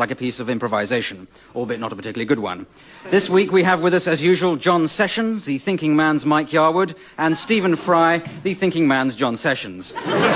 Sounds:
Speech

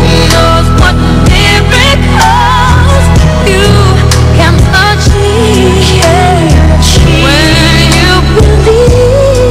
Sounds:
Christian music

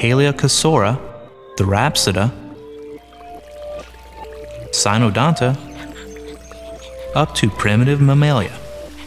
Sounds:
outside, rural or natural, Speech, Music

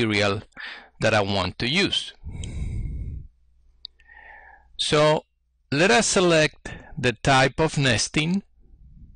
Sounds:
Speech

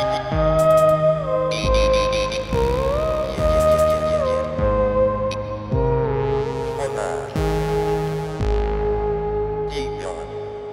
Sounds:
playing theremin

